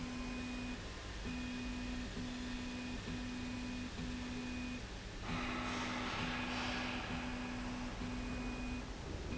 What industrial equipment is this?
slide rail